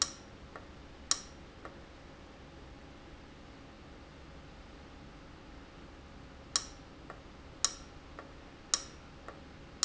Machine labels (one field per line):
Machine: valve